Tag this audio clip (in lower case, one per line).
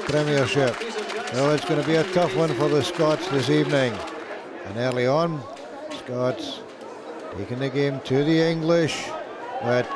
speech